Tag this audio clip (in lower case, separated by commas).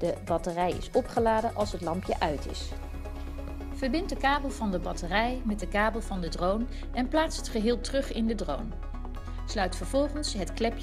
speech, music